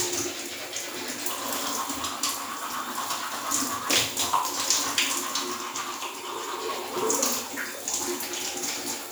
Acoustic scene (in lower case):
restroom